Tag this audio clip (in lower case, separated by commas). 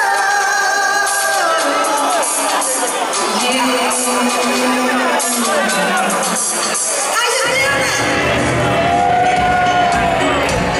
speech, music